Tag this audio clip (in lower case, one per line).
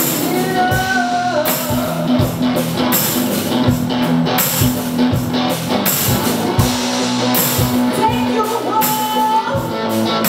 music